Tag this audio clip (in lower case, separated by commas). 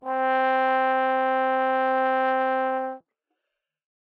musical instrument, music, brass instrument